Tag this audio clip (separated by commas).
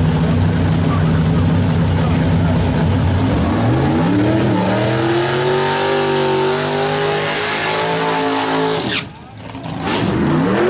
Speech